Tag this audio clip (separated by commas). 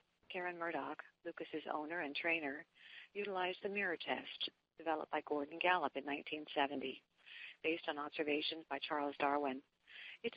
Speech